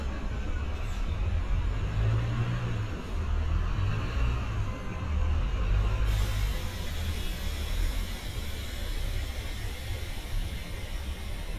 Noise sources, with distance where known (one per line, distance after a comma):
large-sounding engine, near